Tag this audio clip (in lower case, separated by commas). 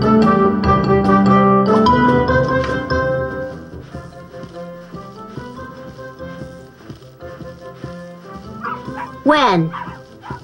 keyboard (musical)